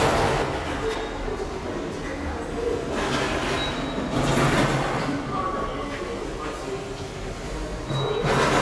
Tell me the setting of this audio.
subway station